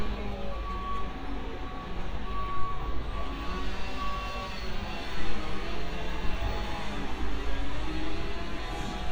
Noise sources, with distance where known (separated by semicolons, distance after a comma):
chainsaw